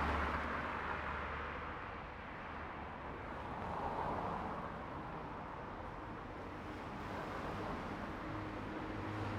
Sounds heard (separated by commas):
car, car wheels rolling, car engine accelerating